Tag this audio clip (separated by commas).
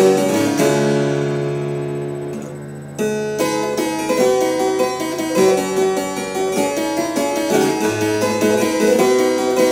playing harpsichord